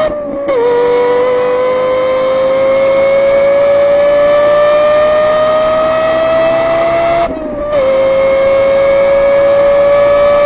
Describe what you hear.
A vehicle engine accelerates quickly